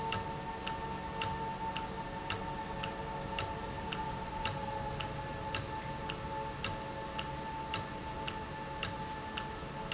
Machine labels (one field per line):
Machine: valve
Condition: normal